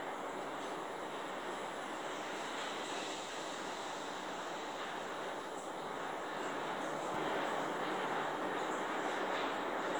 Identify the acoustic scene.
elevator